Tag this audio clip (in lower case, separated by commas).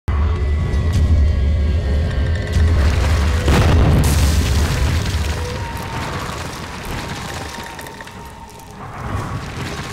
music